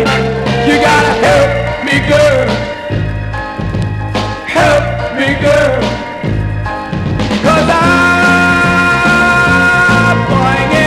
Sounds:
Ska

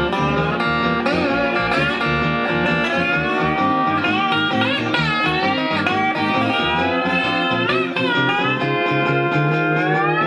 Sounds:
Plucked string instrument, Guitar, Electric guitar, Musical instrument, Music, Blues

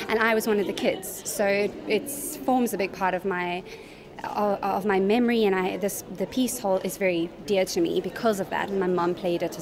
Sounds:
Speech

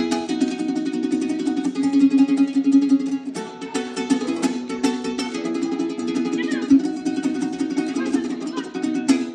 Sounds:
Mandolin, Music, Speech, Musical instrument, Guitar, Ukulele, Plucked string instrument

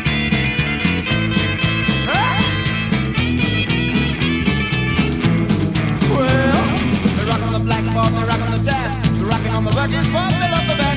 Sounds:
Rock and roll, Psychedelic rock, Rock music, Country, Music

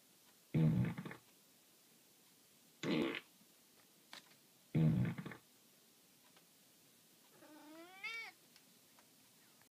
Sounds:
Animal, pets, Purr, Cat

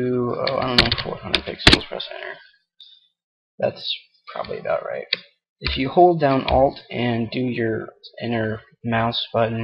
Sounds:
Speech

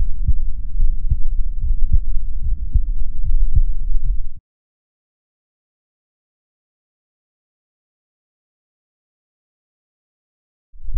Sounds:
heartbeat

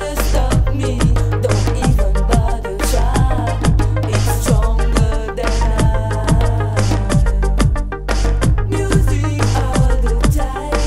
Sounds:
Music

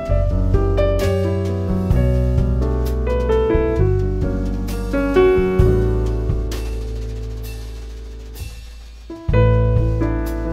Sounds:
Music

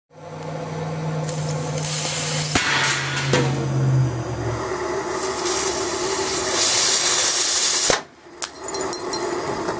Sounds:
outside, urban or man-made

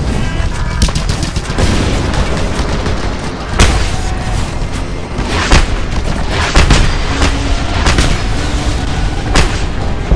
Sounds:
Music, Boom

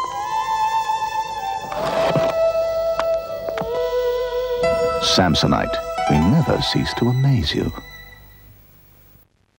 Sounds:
Speech, Music

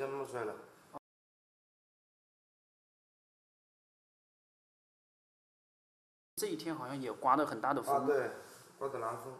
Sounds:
Speech

